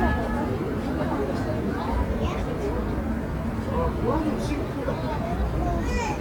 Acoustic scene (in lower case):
residential area